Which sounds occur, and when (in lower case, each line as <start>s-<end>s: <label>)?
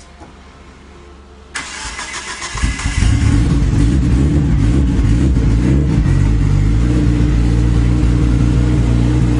0.0s-1.5s: music
0.0s-1.5s: background noise
1.5s-3.1s: engine starting
1.5s-9.3s: medium engine (mid frequency)